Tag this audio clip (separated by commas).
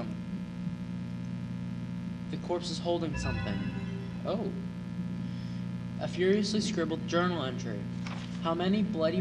Speech